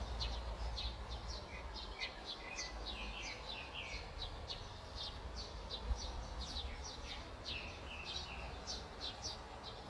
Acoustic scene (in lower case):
park